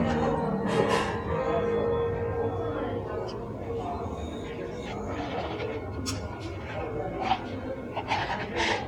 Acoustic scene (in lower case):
cafe